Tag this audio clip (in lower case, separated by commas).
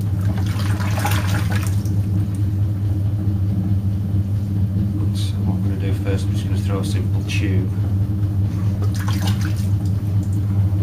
liquid, speech